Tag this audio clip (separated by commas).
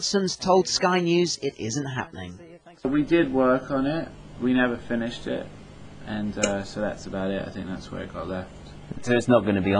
Speech